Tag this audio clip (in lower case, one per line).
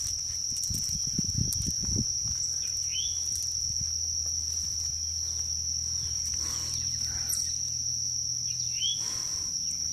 bird
bird call
chirp